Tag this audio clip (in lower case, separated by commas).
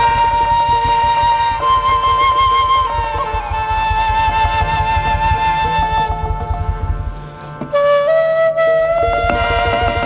music